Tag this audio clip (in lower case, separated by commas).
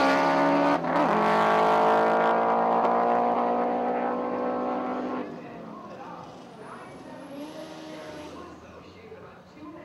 auto racing, vehicle, car, speech